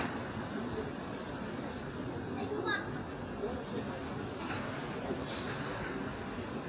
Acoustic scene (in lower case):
park